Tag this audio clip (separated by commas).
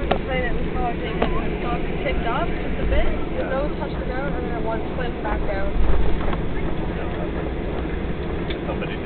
Speech